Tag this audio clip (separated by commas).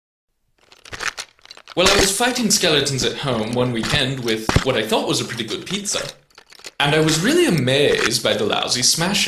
Speech, inside a small room